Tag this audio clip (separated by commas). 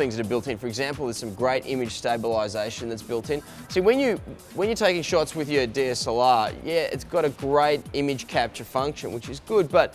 Music, Speech